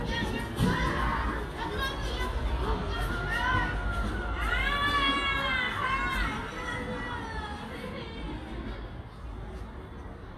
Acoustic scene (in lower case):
residential area